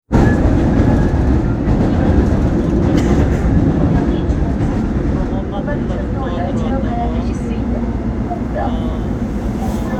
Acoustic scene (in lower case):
subway train